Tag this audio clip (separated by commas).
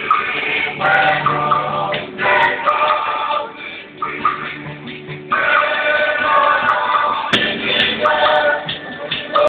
Choir, Music